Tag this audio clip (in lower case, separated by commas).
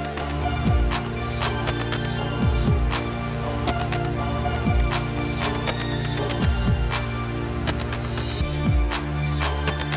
music, soundtrack music